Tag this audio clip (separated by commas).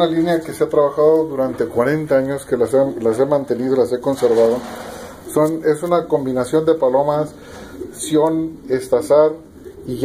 Bird, Pigeon, Speech